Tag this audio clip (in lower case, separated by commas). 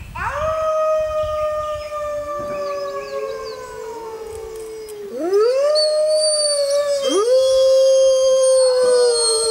coyote howling